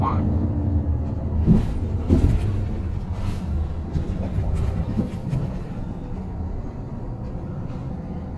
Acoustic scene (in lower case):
bus